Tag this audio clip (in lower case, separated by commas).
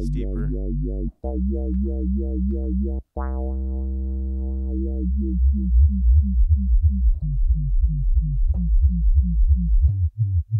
dubstep, speech, electronic music, music